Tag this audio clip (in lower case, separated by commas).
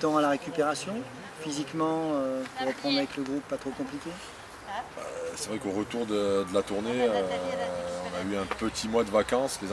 speech